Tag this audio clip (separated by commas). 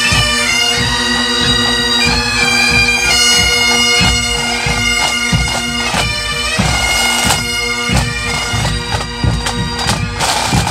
playing bagpipes